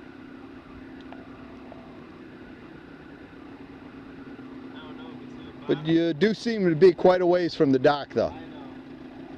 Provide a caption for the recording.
A idling boat on the water followed by a man mentioning something to another person